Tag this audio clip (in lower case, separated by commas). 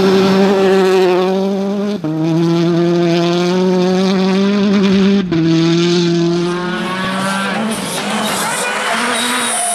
speech